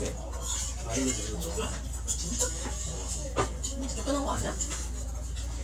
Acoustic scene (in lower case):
restaurant